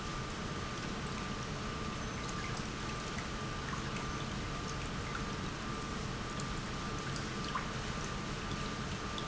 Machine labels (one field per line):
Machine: pump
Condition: normal